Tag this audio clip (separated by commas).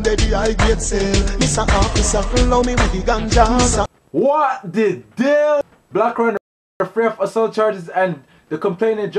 Speech, Music